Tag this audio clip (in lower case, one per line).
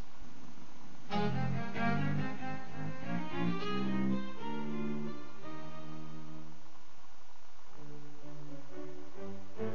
music
bowed string instrument